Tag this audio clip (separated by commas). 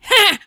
Human voice, Laughter